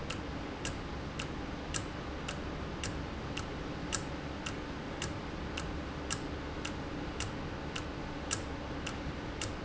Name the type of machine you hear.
valve